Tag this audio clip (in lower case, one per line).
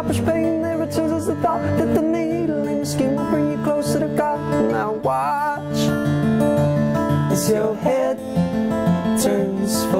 music